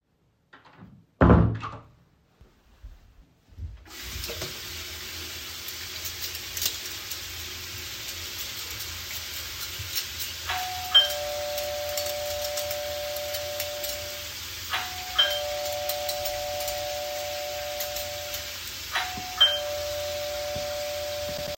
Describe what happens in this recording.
I got into the kitchen, I walked to the sink and turned on the tap water and started washing some spoons and forks, when suddenly the doorbell started ringing.